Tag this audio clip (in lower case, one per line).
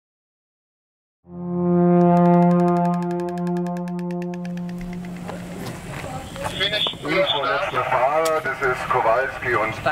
music
speech
radio